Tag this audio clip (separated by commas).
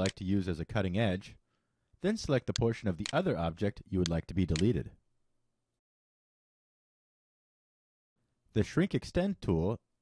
Speech